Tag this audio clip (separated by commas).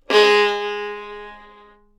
Bowed string instrument, Music, Musical instrument